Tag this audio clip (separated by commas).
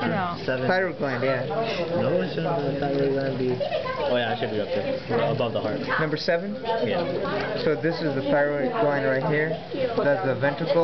inside a public space, Speech